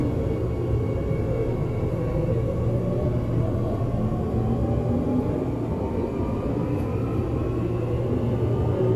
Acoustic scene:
subway train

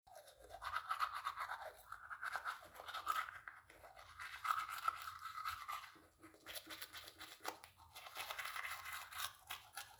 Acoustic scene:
restroom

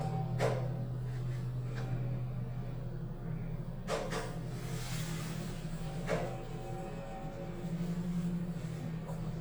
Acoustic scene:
elevator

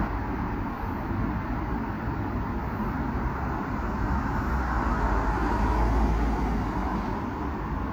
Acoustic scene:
street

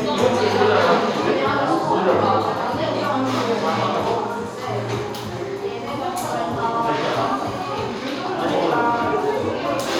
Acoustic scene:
cafe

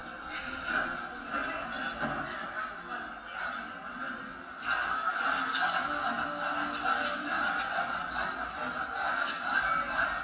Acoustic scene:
cafe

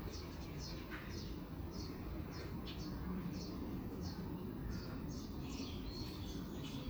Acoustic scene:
park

